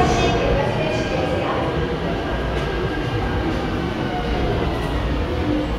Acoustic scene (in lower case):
subway station